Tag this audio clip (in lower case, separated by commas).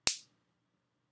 finger snapping, hands